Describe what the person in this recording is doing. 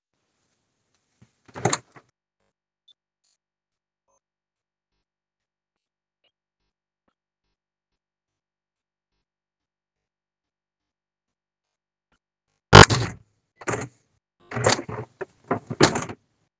I stood near the window in a quiet room. I opened the window and closed it again a moment later. No other important target sound was intended in this scene.